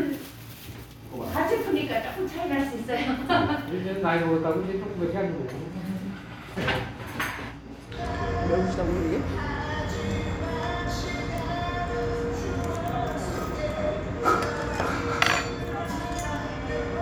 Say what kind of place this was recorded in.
restaurant